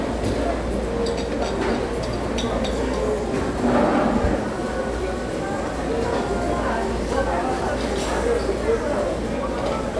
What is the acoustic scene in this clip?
restaurant